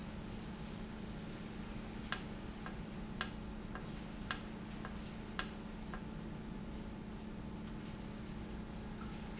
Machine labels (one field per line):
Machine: valve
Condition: normal